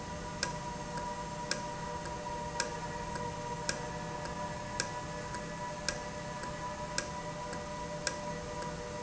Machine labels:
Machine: valve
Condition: normal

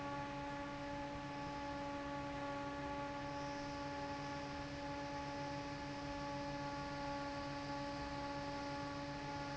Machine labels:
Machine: fan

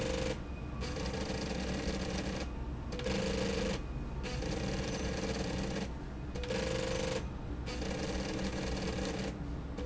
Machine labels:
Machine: slide rail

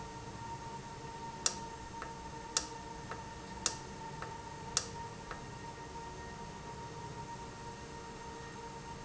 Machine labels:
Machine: valve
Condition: normal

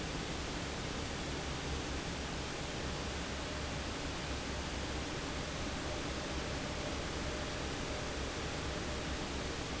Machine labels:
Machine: fan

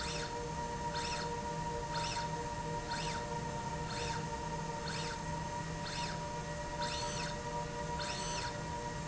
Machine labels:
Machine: slide rail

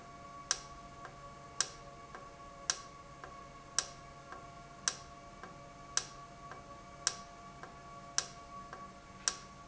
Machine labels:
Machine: valve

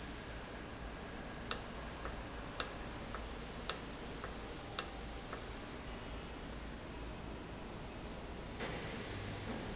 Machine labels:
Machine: valve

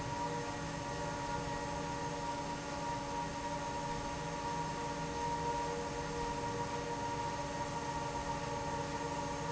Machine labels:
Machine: fan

